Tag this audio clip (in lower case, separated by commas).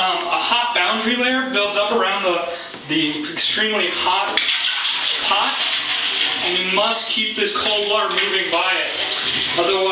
inside a small room, speech, bathtub (filling or washing)